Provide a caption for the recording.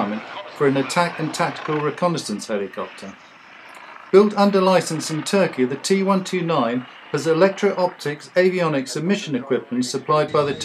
Man speaking, helicopter blades spinning